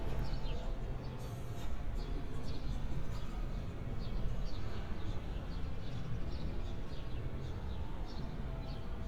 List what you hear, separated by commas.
music from an unclear source